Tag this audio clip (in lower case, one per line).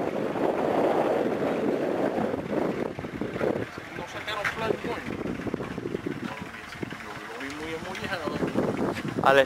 speech
propeller
wind noise (microphone)
vehicle